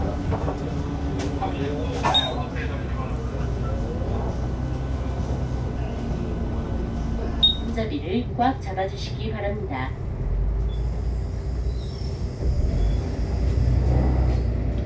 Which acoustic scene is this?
bus